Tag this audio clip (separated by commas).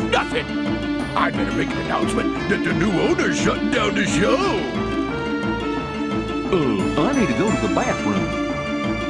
Music, Speech